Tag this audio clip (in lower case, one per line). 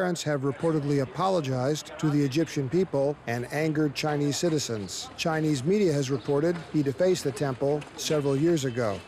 speech